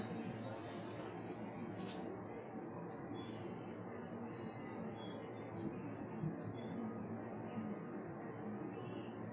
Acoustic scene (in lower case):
bus